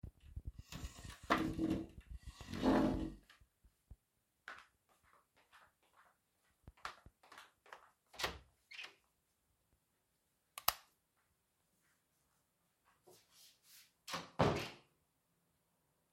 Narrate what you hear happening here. I got up from my desk by moving my chair, I switched off the light and got out of the room, closing the door behind me.